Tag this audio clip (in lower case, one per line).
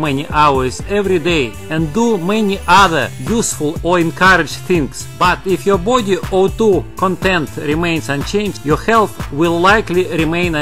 music
speech